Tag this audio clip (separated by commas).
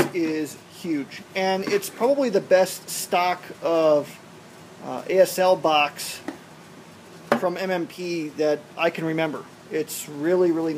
Speech